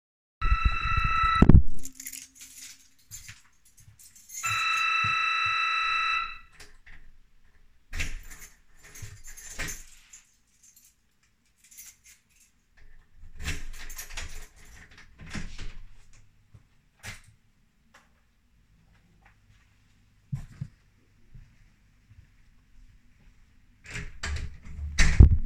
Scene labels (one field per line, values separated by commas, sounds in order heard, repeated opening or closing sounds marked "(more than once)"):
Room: hallway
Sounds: bell ringing, keys, door (more than once)